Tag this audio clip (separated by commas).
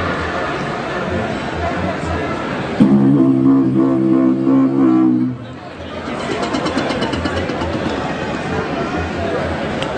Speech